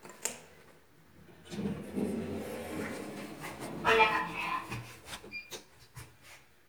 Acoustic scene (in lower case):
elevator